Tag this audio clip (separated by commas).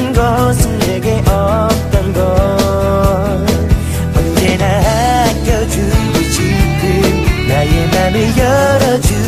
Music, Dance music